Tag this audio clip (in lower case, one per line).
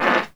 fart